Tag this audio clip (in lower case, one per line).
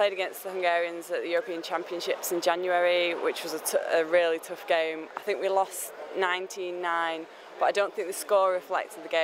waterfall
speech